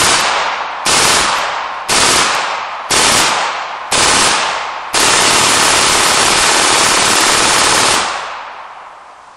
Gunshot, shooting, machine gun